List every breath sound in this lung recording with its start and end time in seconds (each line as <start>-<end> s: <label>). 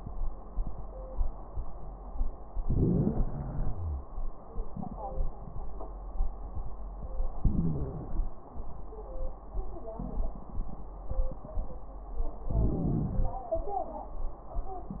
2.63-4.33 s: inhalation
3.72-4.33 s: wheeze
7.40-8.36 s: crackles
7.44-8.40 s: inhalation
12.48-13.44 s: inhalation
12.48-13.44 s: crackles